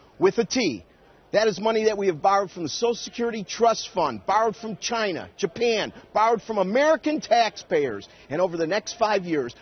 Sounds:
narration
man speaking
speech

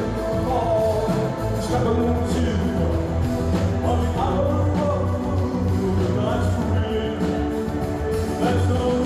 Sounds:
music

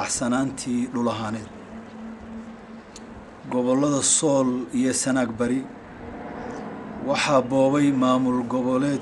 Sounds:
narration
male speech
speech

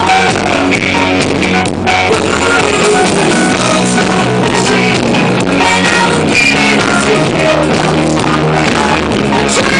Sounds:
music

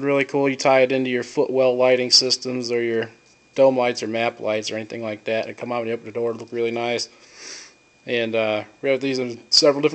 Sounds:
speech

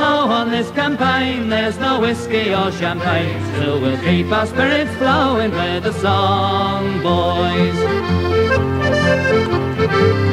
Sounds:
music

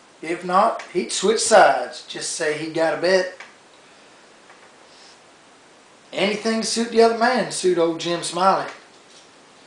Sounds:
speech

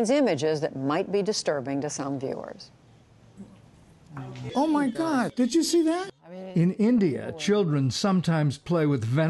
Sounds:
speech

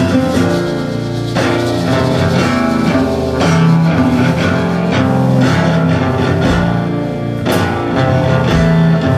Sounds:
music

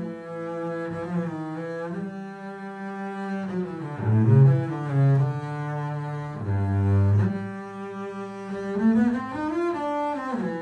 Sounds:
music
double bass
playing double bass

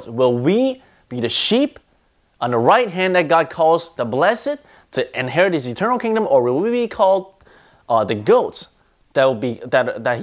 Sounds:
speech

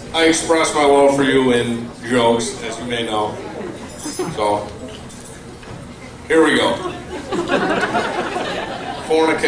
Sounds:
speech
male speech

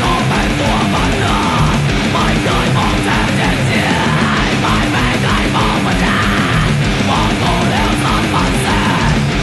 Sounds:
strum
music
plucked string instrument
guitar
musical instrument
electric guitar

